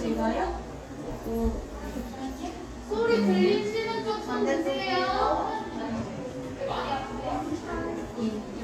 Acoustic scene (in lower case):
crowded indoor space